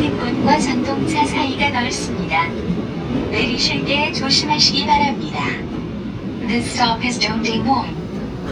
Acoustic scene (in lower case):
subway train